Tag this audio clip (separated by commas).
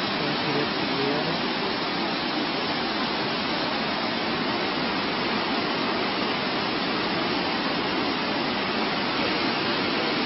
Vehicle